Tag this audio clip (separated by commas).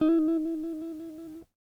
Guitar, Music, Musical instrument, Plucked string instrument